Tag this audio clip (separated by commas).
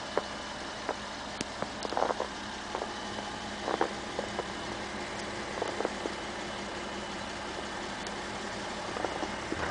Vehicle